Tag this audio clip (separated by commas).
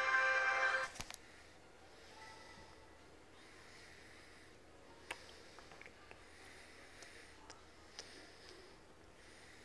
Music, Television